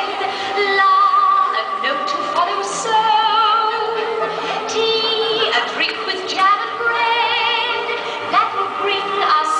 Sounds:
Music, Crowd

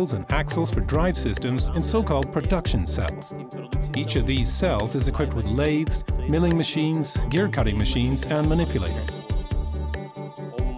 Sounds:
Music, Speech

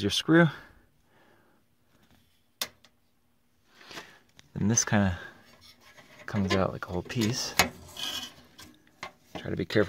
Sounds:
inside a small room, Speech

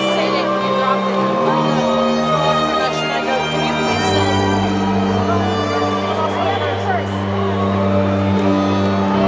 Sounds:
Music, Speech

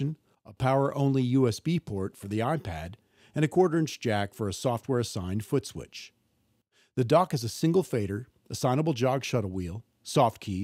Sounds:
Speech

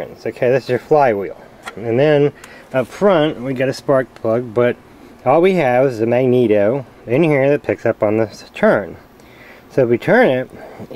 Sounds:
Speech

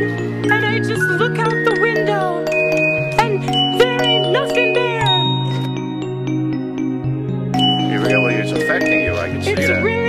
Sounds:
outside, urban or man-made, Music, Speech

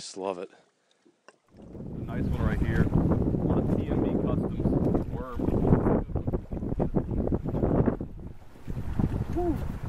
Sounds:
Sailboat

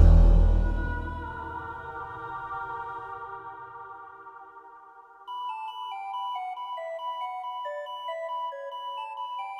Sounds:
Music

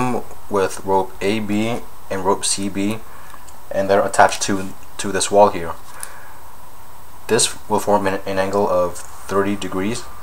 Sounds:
Speech

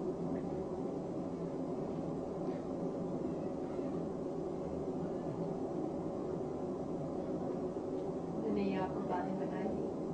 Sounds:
Speech

